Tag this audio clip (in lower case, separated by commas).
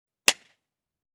clapping, hands